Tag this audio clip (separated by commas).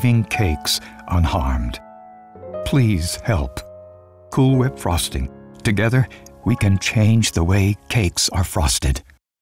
Speech, Music